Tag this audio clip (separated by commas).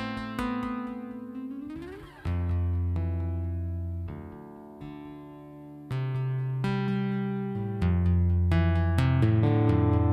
Music